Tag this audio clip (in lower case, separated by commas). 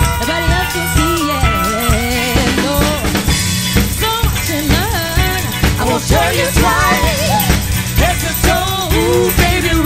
dance music, music